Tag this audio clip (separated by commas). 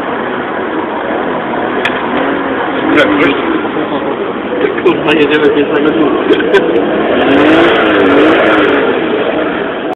Speech